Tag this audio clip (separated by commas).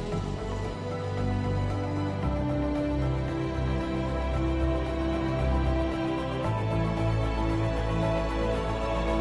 Music